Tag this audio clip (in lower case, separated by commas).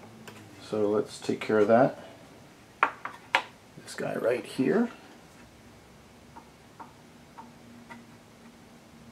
speech